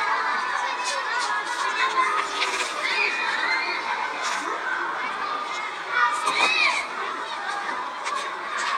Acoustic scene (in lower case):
park